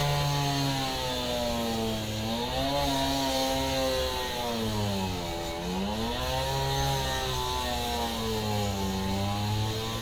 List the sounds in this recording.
unidentified powered saw